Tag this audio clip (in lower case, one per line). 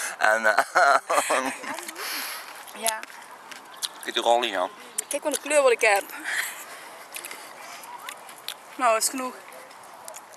speech